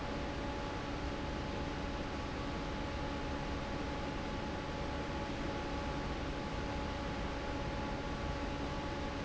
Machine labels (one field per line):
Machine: fan